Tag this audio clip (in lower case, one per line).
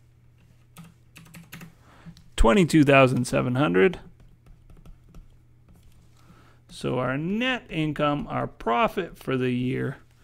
typing
speech
computer keyboard